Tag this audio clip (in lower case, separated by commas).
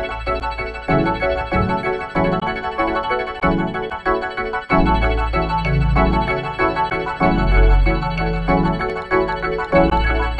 music